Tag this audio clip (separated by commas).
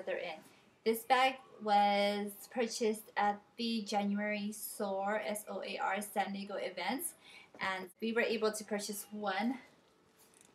Speech